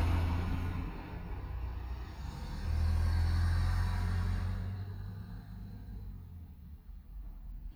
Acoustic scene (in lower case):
residential area